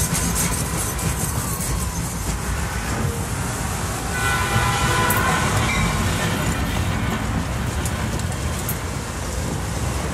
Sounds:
traffic noise
outside, urban or man-made

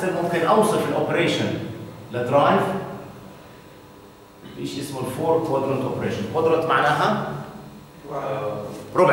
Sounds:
speech

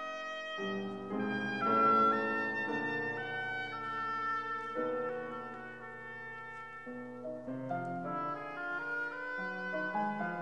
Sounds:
music

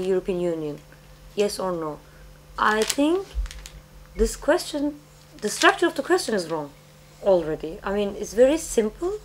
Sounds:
speech

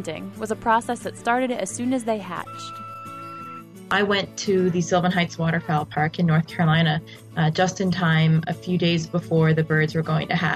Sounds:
fowl
goose

